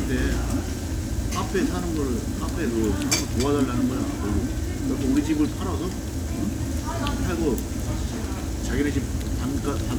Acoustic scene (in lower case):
crowded indoor space